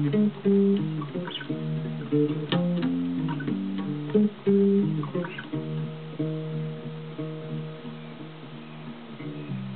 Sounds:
Music, Musical instrument, Guitar, Bass guitar, Bowed string instrument, Plucked string instrument

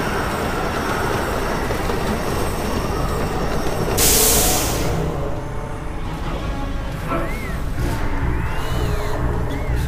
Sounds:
Music

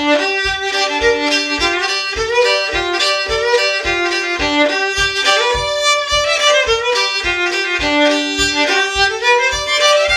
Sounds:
Music, Musical instrument, Violin

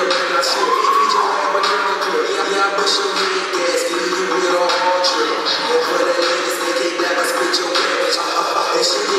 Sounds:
Music

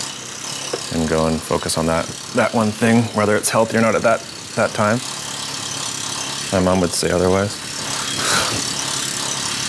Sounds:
Speech

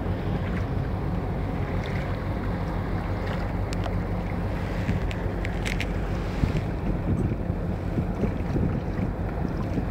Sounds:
Water vehicle, Vehicle

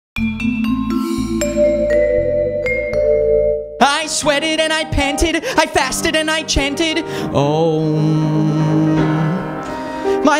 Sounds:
Vibraphone, Music, inside a large room or hall, Singing

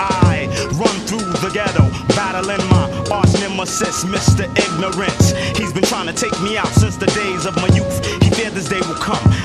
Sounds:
Music

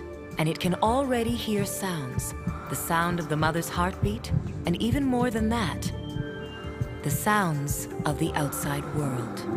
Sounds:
Speech, Music

